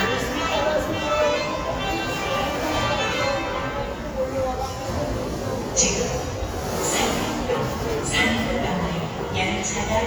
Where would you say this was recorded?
in a subway station